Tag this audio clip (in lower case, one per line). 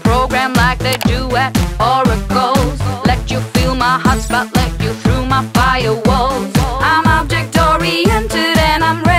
music